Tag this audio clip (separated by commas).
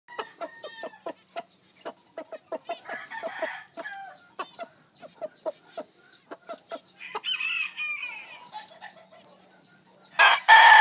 Cluck, cock-a-doodle-doo, Chicken, Fowl